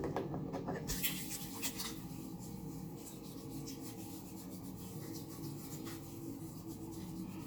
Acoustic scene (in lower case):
restroom